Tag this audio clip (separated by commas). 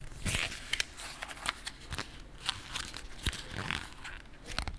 Crumpling